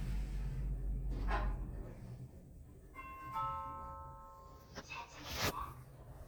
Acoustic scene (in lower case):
elevator